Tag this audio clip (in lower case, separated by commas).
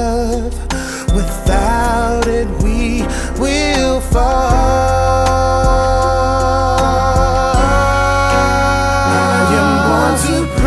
music